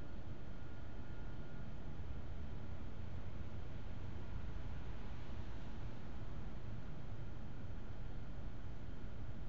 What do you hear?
background noise